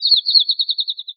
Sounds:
bird call, animal, wild animals, bird

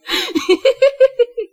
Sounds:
human voice, laughter

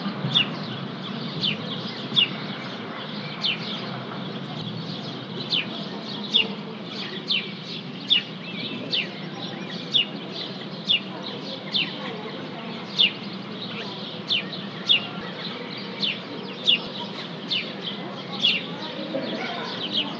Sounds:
bird vocalization, tweet, animal, wild animals, bird

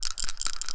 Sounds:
rattle

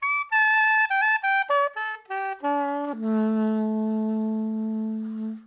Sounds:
music, woodwind instrument, musical instrument

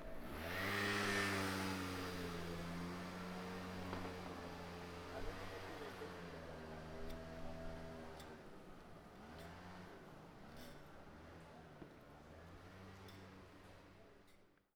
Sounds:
engine, vehicle, motor vehicle (road)

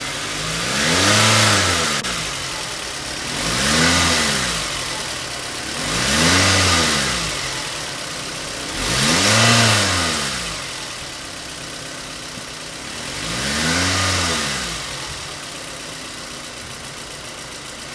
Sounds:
vehicle, motor vehicle (road)

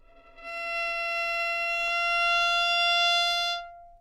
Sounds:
bowed string instrument, music, musical instrument

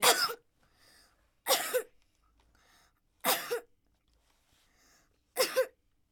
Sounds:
cough, respiratory sounds

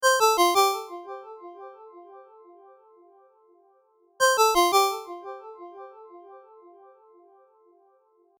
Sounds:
telephone, ringtone, alarm

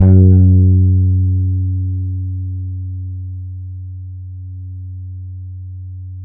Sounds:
guitar, music, bass guitar, musical instrument, plucked string instrument

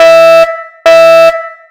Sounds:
alarm

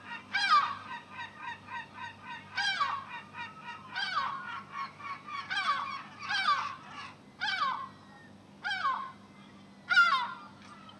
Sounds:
bird, animal, wild animals, bird call

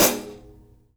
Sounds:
musical instrument, hi-hat, percussion, music, cymbal

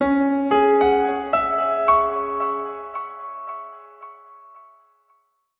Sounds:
piano, music, musical instrument, keyboard (musical)

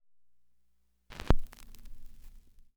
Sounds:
crackle

